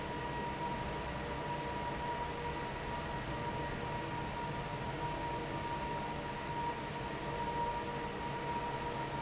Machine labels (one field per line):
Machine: fan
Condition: normal